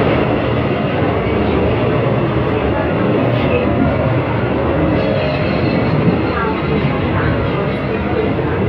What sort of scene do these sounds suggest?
subway train